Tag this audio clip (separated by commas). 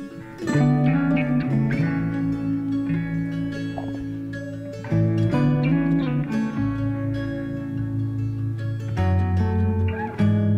Music